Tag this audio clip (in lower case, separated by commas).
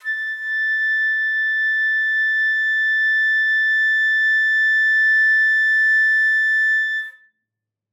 woodwind instrument, music, musical instrument